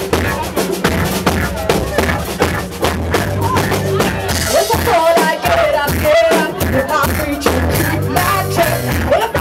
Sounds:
speech
music

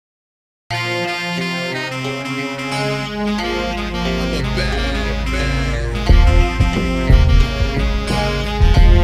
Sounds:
theme music
music

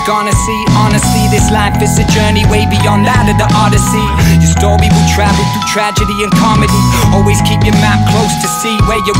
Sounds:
music

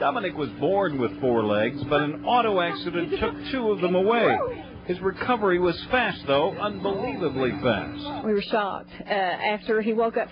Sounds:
speech

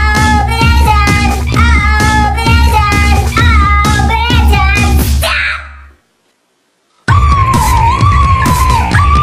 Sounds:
music

